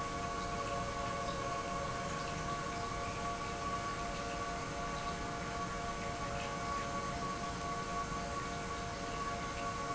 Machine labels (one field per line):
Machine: pump